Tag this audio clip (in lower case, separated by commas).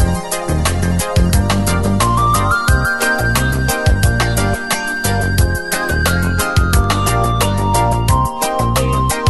music